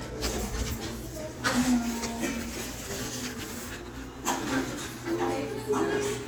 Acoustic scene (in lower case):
crowded indoor space